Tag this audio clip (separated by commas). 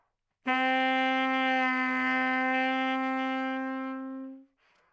Music, Musical instrument, Wind instrument